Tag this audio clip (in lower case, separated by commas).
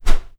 whoosh